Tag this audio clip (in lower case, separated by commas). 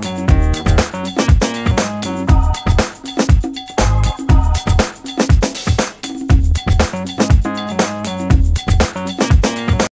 music